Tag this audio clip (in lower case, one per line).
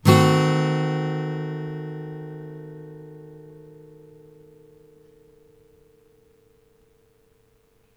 music
plucked string instrument
acoustic guitar
musical instrument
guitar